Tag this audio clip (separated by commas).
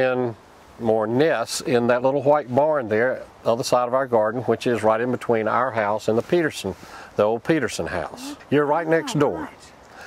Speech